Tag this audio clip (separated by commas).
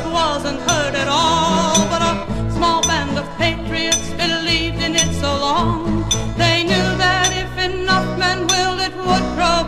Christmas music, Music